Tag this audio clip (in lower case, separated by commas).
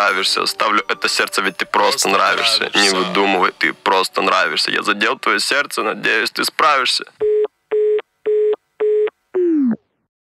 speech, music